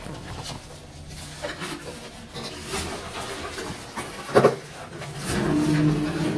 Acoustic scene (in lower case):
elevator